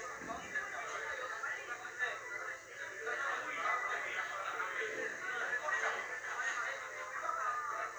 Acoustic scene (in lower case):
restaurant